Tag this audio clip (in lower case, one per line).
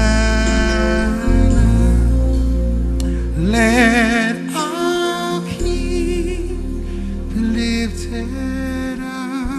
music
new-age music